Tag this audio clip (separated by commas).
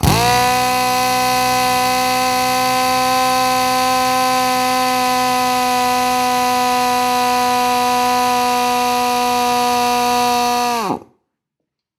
Tools, Drill, Power tool